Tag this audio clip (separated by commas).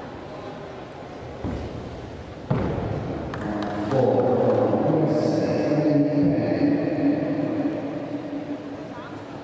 Speech